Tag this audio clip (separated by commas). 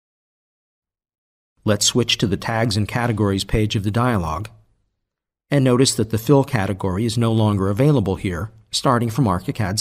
Speech